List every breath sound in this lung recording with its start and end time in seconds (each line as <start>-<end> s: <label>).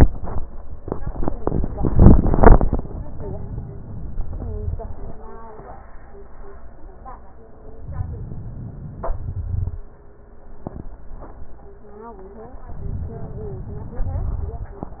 7.78-9.12 s: inhalation
9.12-9.78 s: exhalation
9.13-9.91 s: crackles
12.72-14.11 s: inhalation